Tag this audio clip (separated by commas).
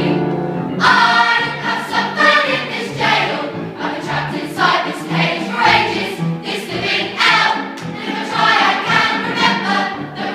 Music, Choir